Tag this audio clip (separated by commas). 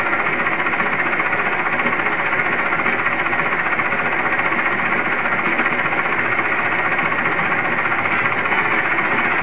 outside, urban or man-made, inside a small room